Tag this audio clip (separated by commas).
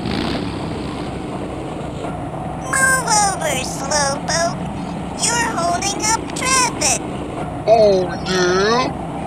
Car, Speech, Vehicle